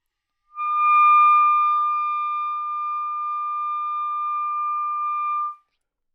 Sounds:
musical instrument, music, woodwind instrument

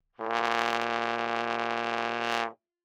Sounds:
music, brass instrument, musical instrument

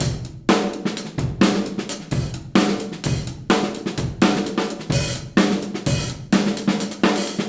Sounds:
drum kit, musical instrument, percussion, drum, music

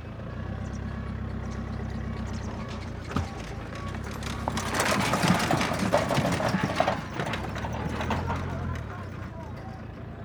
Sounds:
motor vehicle (road), vehicle, truck

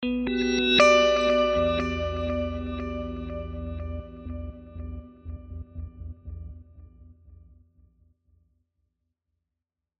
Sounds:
plucked string instrument, music, guitar, musical instrument

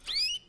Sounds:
bird, animal, wild animals, tweet, bird call

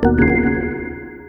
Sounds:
organ, musical instrument, music, keyboard (musical)

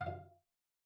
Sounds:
music, musical instrument, bowed string instrument

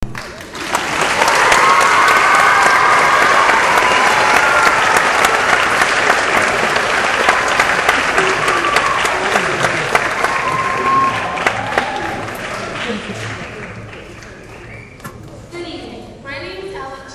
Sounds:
applause, human group actions

